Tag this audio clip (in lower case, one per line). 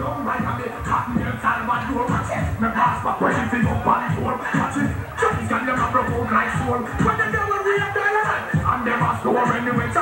music